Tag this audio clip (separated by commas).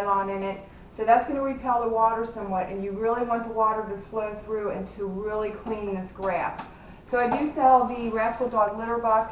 Speech